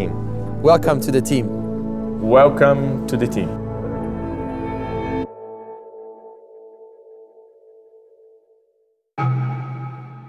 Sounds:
music
speech

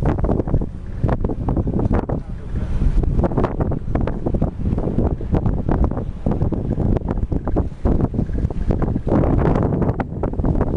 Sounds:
water vehicle
vehicle
speech

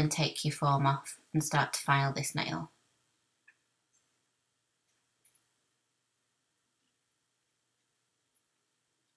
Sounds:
inside a small room
speech

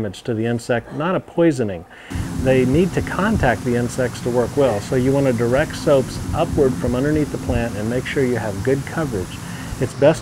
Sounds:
speech

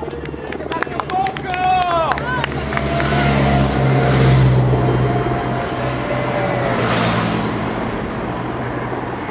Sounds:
vehicle
car
speech
motorcycle

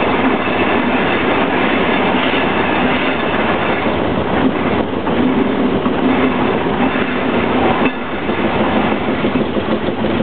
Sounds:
vehicle

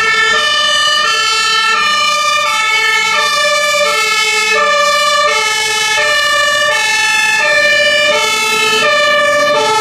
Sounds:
fire truck siren

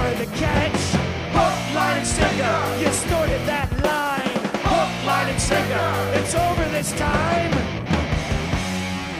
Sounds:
singing
music
punk rock

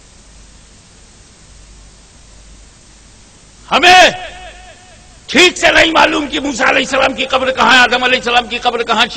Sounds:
speech
rustle

